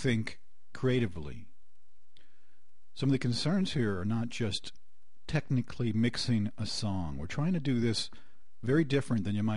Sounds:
speech

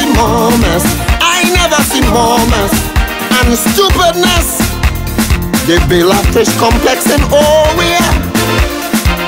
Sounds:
music

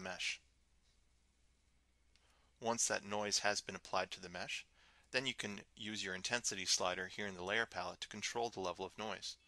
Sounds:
speech

